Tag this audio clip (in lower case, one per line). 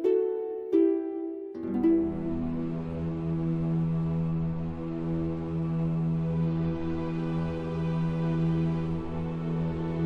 music